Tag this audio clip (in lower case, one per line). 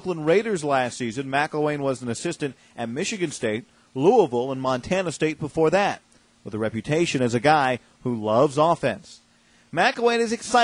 speech